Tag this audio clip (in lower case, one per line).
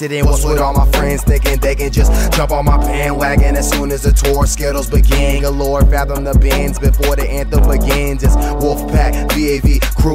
music